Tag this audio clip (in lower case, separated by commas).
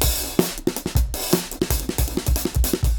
musical instrument, drum kit, music, percussion